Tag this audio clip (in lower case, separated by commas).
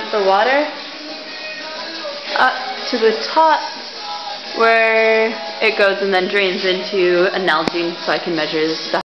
music, speech